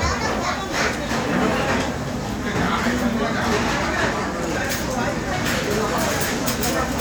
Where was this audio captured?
in a restaurant